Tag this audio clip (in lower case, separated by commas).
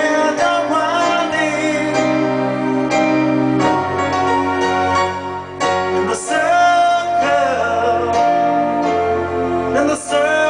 music, keyboard (musical), musical instrument, piano